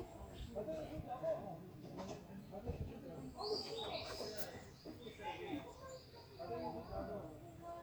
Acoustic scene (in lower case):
park